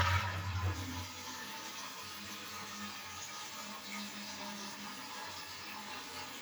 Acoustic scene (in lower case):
restroom